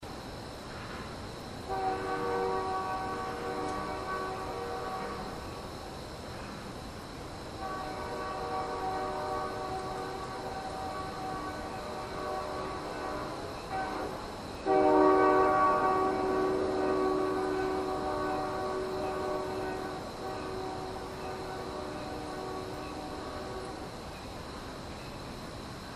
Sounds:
Rail transport, Vehicle, Train

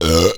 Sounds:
eructation

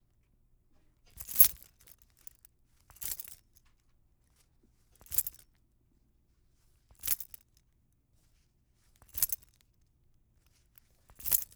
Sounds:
home sounds, Keys jangling

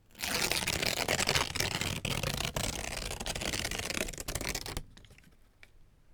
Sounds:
Tearing

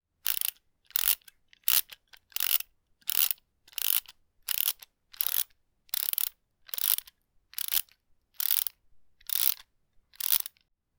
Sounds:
pawl, Mechanisms

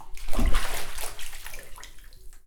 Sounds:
Splash, Water, Liquid, Bathtub (filling or washing), Domestic sounds

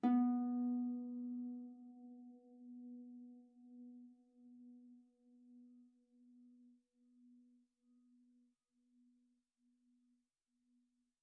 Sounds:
Harp, Musical instrument, Music

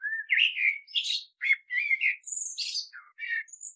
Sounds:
Animal, Bird, Wild animals

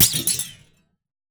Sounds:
Thump

